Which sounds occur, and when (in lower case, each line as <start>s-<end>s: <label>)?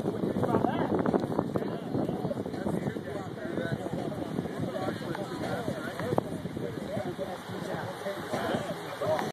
0.0s-1.4s: wind noise (microphone)
0.0s-9.3s: fire
0.0s-9.3s: speech babble
0.0s-9.3s: wind
1.1s-1.2s: tick
1.5s-3.0s: wind noise (microphone)
3.1s-4.5s: wind noise (microphone)
4.6s-7.1s: wind noise (microphone)
5.1s-5.2s: tick
5.9s-6.0s: tick
7.5s-7.8s: wind noise (microphone)
8.3s-8.7s: wind noise (microphone)
9.0s-9.1s: wind noise (microphone)
9.1s-9.2s: tick